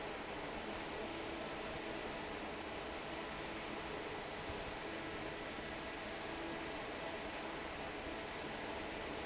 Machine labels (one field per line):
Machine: fan